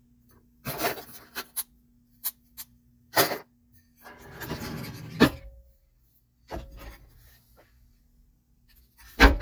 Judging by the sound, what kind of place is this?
kitchen